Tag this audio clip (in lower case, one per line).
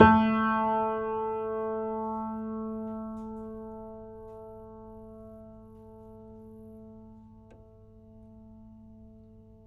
piano
music
keyboard (musical)
musical instrument